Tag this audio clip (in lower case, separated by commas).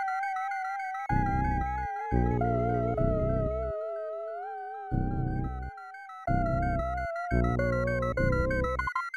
music